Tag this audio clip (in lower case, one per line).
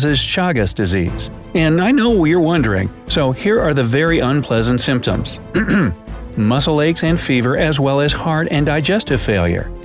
mosquito buzzing